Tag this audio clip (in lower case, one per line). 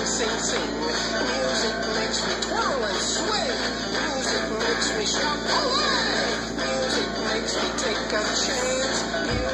music